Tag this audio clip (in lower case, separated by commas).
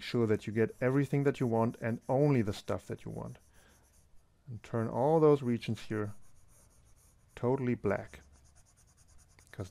writing